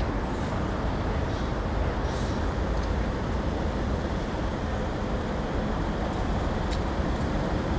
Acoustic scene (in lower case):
street